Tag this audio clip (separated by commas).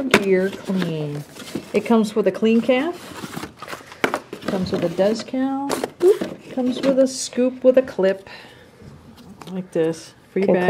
Speech